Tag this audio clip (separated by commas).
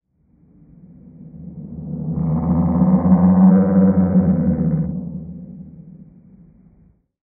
Animal